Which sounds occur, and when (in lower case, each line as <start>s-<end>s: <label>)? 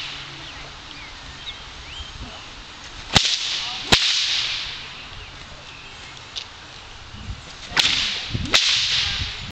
0.0s-9.5s: wind
0.4s-0.6s: bird vocalization
0.9s-1.6s: bird vocalization
1.8s-2.4s: bird vocalization
1.9s-2.3s: wind noise (microphone)
2.2s-2.4s: human voice
2.8s-3.0s: walk
3.1s-3.7s: whip
3.6s-3.8s: human voice
3.9s-4.7s: whip
4.9s-5.3s: bird vocalization
5.6s-6.2s: bird vocalization
6.3s-6.5s: walk
6.6s-7.4s: bird vocalization
7.1s-7.4s: wind noise (microphone)
7.4s-7.7s: walk
7.7s-8.2s: whip
8.3s-8.5s: wind noise (microphone)
8.4s-8.5s: tick
8.5s-9.3s: whip
8.7s-9.5s: wind noise (microphone)
8.9s-9.3s: child speech